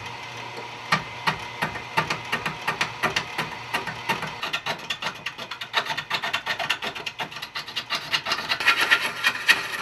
Light knocking and rattling with some sanding and scraping